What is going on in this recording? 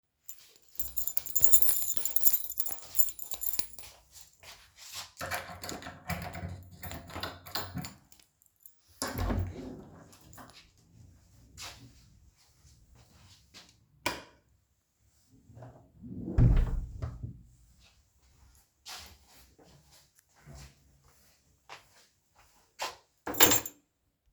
I walked with the keys to the door. Unlocked and opened the door, turned on the lights and closed the door. I walked to the table and put my keys on top of it.